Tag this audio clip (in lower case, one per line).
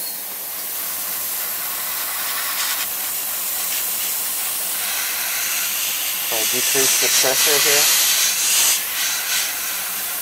inside a small room
spray
speech